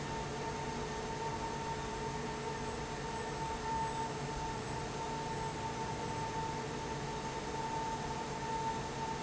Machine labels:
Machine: fan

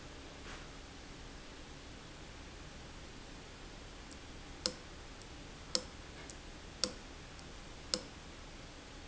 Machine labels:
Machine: valve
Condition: abnormal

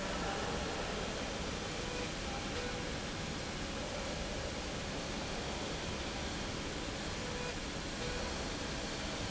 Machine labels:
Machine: slide rail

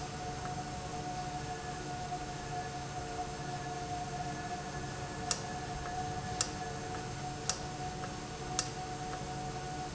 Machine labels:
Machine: valve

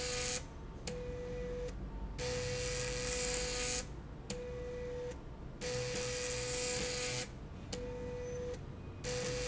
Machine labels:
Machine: slide rail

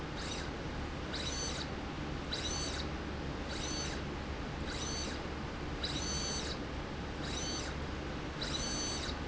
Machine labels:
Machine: slide rail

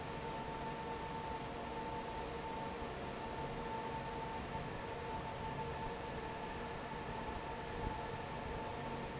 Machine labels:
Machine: fan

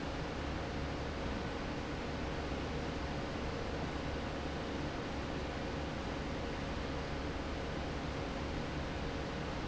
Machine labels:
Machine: fan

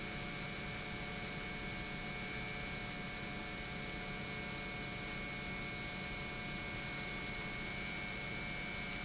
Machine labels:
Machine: pump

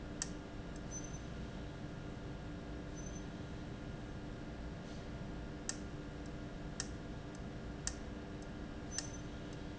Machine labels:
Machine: valve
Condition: abnormal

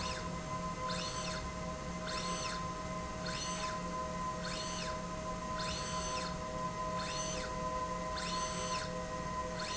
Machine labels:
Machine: slide rail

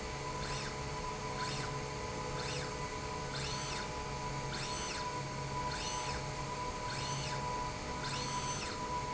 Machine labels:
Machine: slide rail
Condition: normal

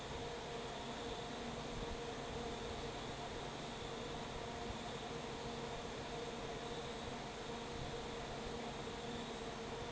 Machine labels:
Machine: fan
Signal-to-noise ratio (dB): 6 dB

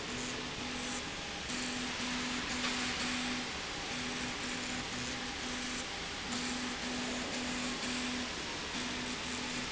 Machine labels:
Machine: slide rail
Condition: abnormal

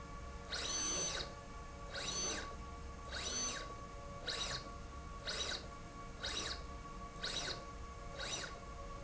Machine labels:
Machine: slide rail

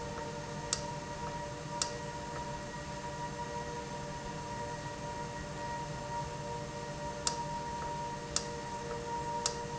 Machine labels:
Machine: valve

